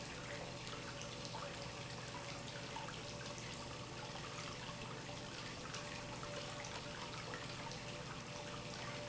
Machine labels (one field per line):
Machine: pump